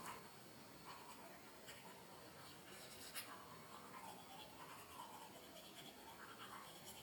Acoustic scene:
restroom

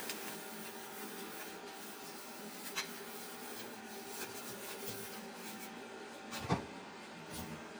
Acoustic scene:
kitchen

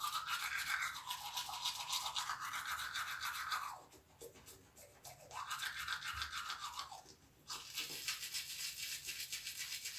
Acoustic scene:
restroom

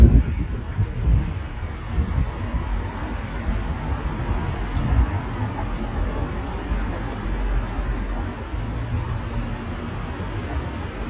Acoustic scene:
street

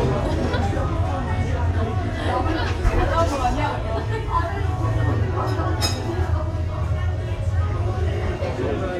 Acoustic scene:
restaurant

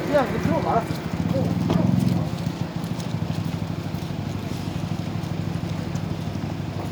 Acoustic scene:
street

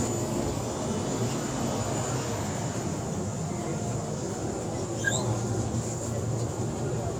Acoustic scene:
subway station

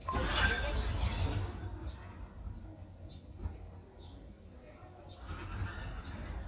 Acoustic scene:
residential area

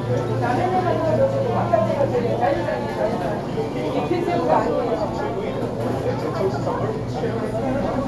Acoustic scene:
crowded indoor space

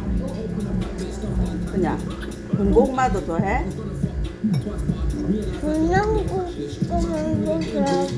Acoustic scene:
restaurant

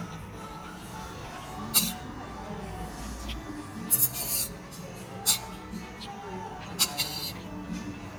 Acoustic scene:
restaurant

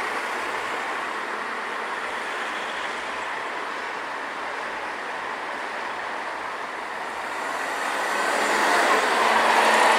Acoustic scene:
street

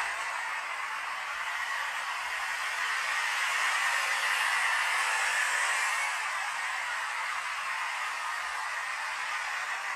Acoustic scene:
street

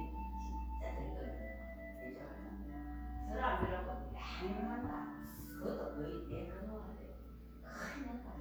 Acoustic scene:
crowded indoor space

